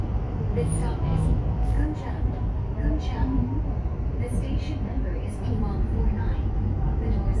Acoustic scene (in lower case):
subway train